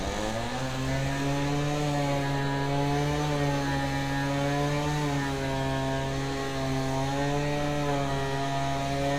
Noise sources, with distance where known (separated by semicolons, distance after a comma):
chainsaw, near